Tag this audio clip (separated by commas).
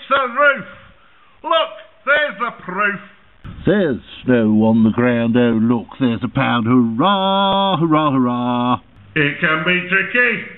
Speech